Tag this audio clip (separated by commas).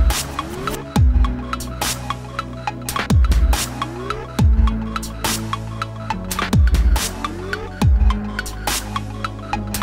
Dubstep, Music, Electronic music